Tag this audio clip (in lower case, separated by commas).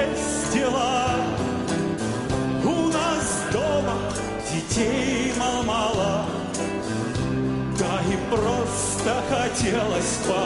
acoustic guitar, music, plucked string instrument, musical instrument